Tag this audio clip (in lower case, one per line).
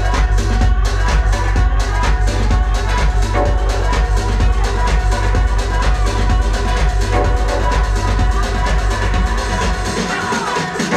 music
jazz